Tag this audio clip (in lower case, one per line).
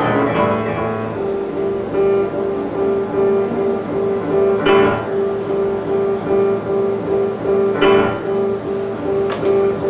music
techno